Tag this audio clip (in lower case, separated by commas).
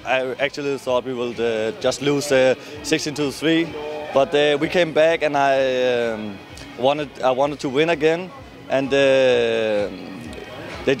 speech, music